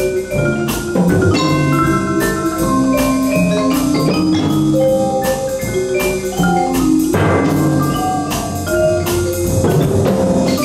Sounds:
vibraphone, playing vibraphone, music, steelpan, drum

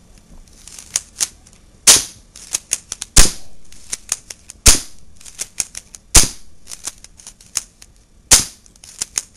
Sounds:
cap gun, gunfire

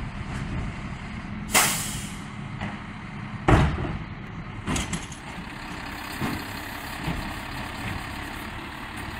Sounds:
truck, vehicle

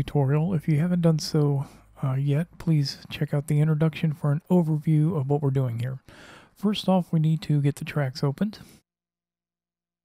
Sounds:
speech

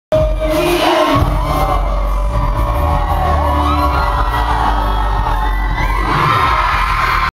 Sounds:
dance music, music

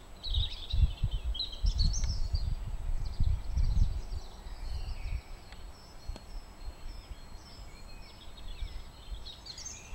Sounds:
pheasant crowing

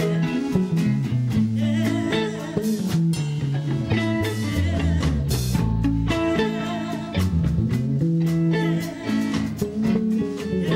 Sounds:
female singing, music

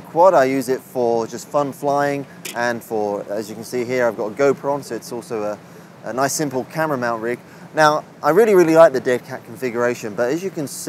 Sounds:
speech

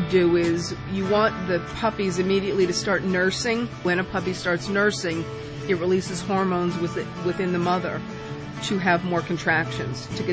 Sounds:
speech, music

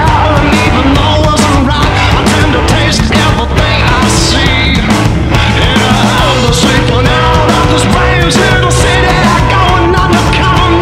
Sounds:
music

